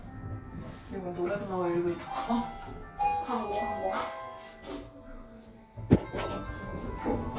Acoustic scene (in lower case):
elevator